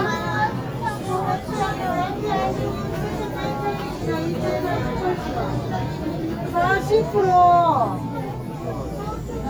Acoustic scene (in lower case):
crowded indoor space